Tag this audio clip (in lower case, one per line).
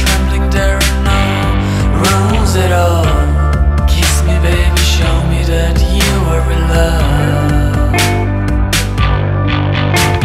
music
rhythm and blues
blues